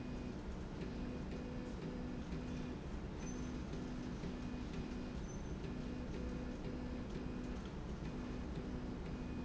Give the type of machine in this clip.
slide rail